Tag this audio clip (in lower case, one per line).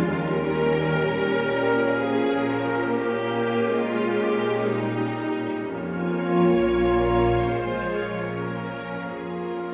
music